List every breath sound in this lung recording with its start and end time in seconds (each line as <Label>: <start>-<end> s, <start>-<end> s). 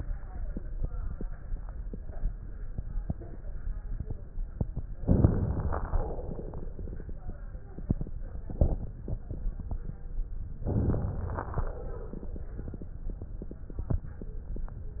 Inhalation: 5.01-5.83 s, 10.68-11.61 s
Exhalation: 5.84-6.76 s, 11.69-12.49 s
Crackles: 5.01-5.83 s, 10.68-11.61 s